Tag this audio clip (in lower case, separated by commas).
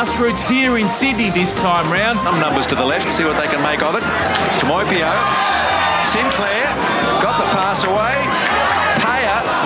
music, speech